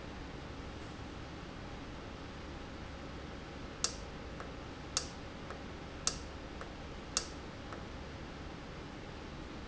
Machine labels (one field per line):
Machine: valve